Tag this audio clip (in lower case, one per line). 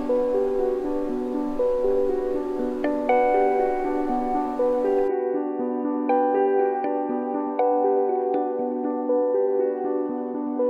mosquito buzzing